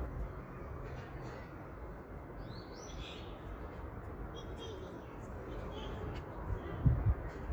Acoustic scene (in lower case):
park